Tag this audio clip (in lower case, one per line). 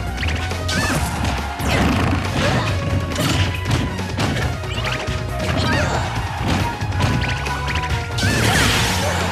whack